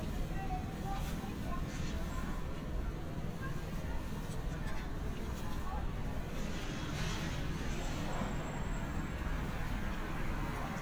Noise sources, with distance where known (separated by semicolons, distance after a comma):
engine of unclear size; unidentified human voice, far